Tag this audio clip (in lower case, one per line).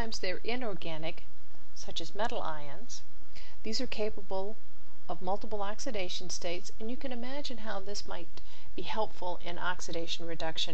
speech